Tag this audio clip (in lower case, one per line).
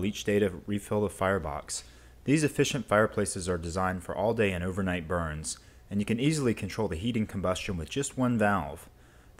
speech